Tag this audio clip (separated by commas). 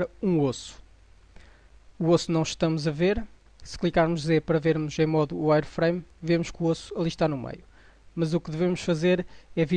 Speech